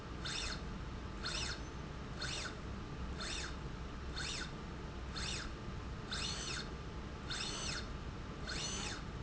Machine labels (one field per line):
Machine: slide rail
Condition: normal